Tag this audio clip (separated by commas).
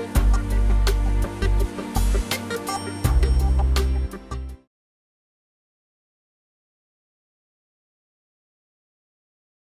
Music